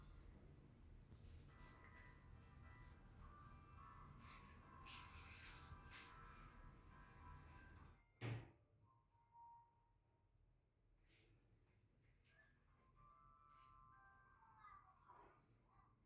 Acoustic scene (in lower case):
elevator